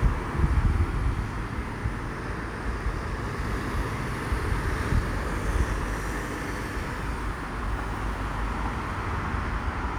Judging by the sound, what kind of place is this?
street